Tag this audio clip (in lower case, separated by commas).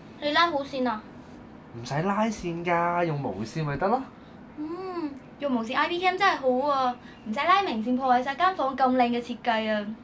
speech